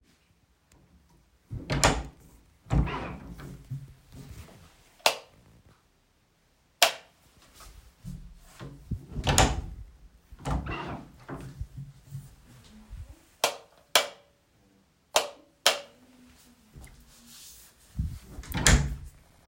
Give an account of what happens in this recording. I opened the kitchen door, switched on the light, then turned it off and closed the door. All actions are clearly audible.